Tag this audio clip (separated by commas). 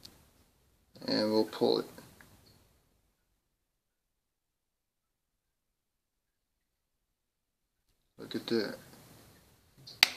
Speech, inside a small room